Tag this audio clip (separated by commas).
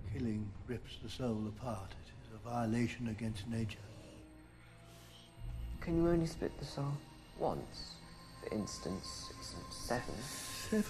Speech